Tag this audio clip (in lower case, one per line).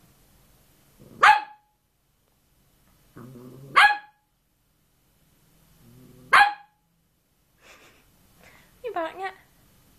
speech
bark